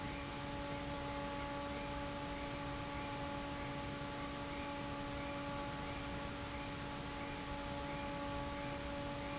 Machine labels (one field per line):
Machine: fan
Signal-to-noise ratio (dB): 0 dB